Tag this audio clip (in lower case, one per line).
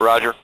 human voice
male speech
speech